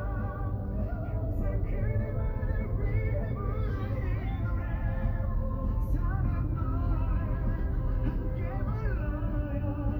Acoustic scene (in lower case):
car